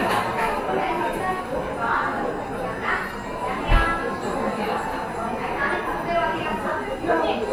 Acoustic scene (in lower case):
cafe